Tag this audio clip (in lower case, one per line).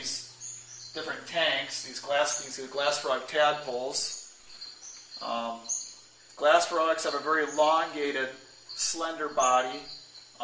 animal
speech